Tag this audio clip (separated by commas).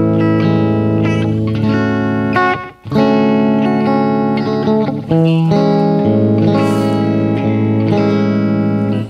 Plucked string instrument, inside a small room, Music, Bass guitar, Musical instrument, Guitar, Effects unit